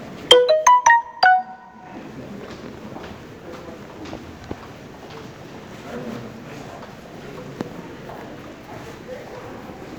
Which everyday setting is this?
crowded indoor space